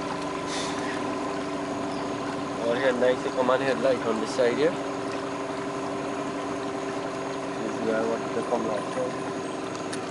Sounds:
Motorboat, Speech, Vehicle, Water vehicle

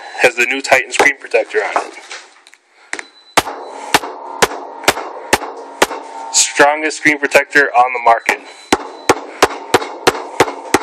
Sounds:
Speech

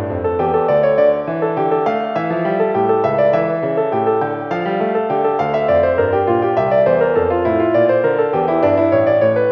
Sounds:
Music, Musical instrument

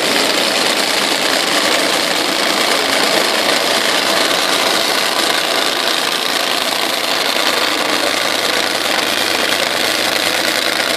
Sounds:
Vibration

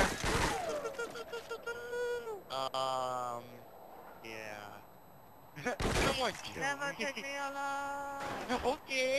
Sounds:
Speech

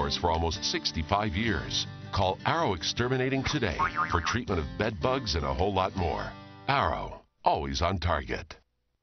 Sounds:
Music, Speech

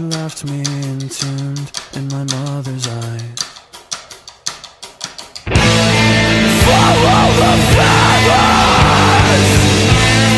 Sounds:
Music

